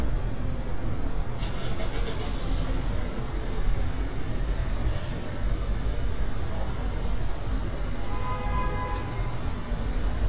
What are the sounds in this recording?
engine of unclear size, car horn